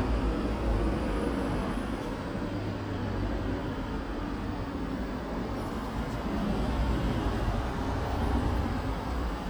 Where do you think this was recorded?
in a residential area